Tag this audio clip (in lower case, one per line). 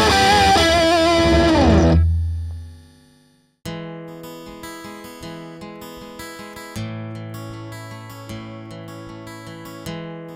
music
plucked string instrument
acoustic guitar
guitar
musical instrument
electric guitar